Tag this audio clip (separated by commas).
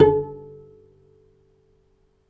Musical instrument, Bowed string instrument, Music